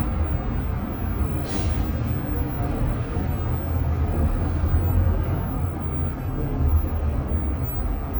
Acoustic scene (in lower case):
bus